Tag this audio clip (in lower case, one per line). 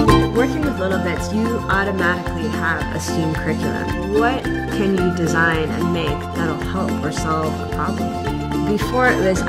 music
speech